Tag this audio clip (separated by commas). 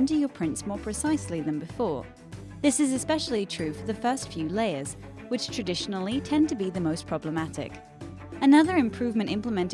Music, Speech